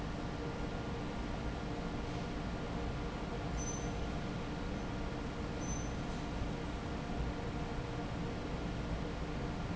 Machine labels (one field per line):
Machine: fan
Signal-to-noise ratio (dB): -6 dB